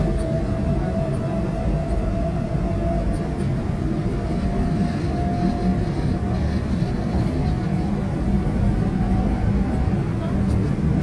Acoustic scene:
subway train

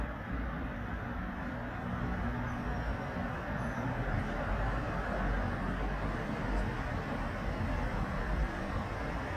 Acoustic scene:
street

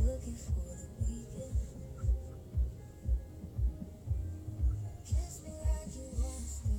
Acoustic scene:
car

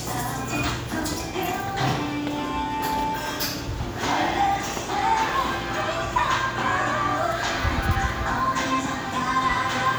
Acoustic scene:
cafe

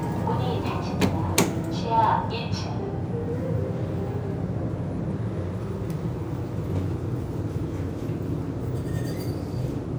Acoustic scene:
elevator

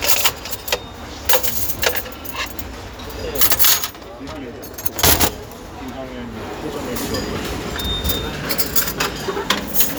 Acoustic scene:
restaurant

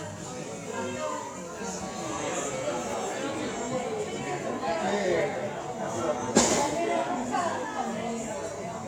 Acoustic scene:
cafe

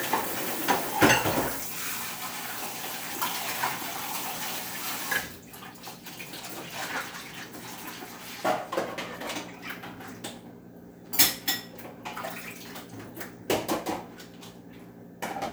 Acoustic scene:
kitchen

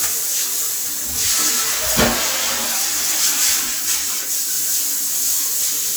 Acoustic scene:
restroom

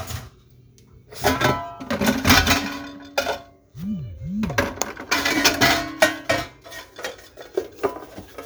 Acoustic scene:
kitchen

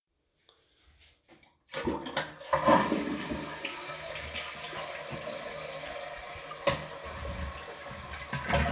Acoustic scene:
restroom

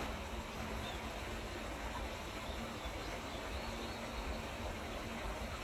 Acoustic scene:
park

